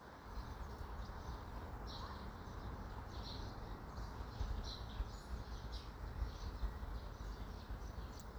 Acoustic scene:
park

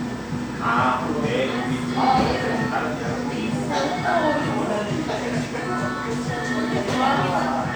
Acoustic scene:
cafe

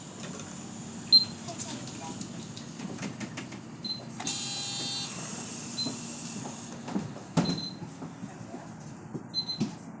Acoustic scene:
bus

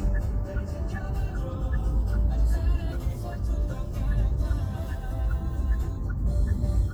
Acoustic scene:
car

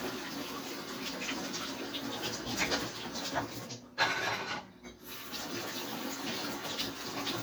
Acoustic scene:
kitchen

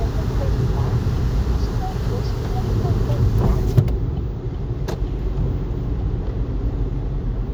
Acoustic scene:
car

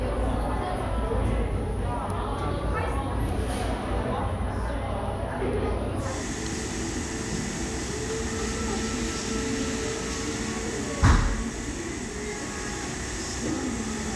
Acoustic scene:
cafe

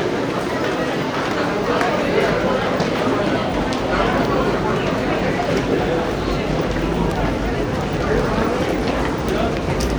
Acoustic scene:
subway station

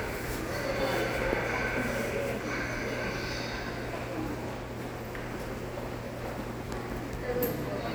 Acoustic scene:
subway station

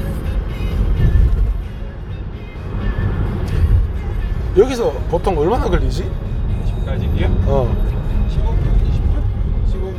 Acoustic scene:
car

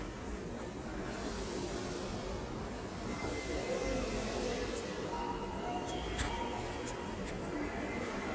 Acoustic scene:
subway station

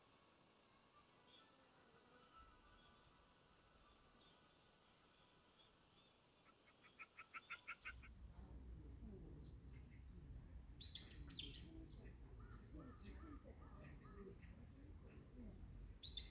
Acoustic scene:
park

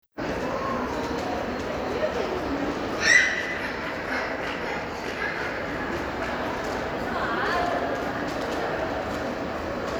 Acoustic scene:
crowded indoor space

